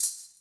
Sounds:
Musical instrument, Percussion, Music, Rattle (instrument)

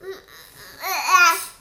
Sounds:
Human voice, Speech

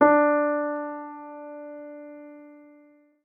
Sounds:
Musical instrument, Music, Piano, Keyboard (musical)

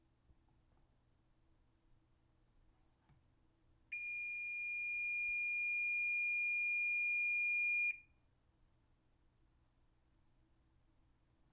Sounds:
home sounds, Alarm, Microwave oven

